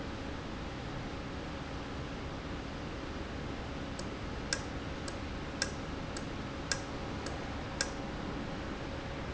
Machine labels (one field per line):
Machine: valve